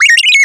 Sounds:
bird, animal, tweet, bird vocalization, wild animals

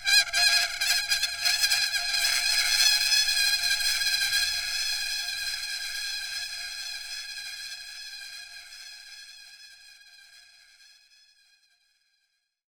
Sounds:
screech

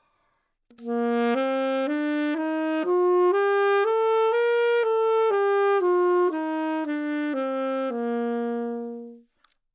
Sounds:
music, musical instrument, wind instrument

